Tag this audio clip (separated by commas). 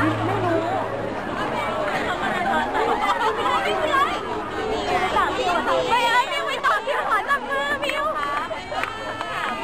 Speech